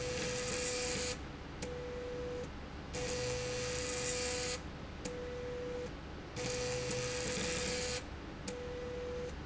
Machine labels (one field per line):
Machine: slide rail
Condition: abnormal